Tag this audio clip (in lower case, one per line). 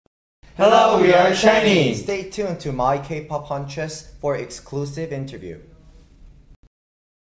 speech